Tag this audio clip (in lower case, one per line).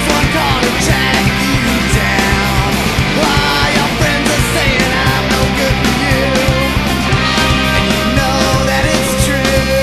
music